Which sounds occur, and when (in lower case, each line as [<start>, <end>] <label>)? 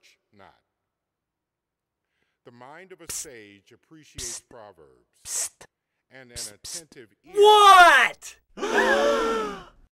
[0.00, 0.13] human voice
[0.32, 0.58] male speech
[2.51, 4.87] male speech
[3.05, 3.23] human voice
[4.13, 4.40] human voice
[5.22, 5.50] human voice
[6.09, 7.09] male speech
[6.32, 6.51] human voice
[6.59, 6.79] human voice
[7.25, 8.37] male speech
[8.55, 9.68] gasp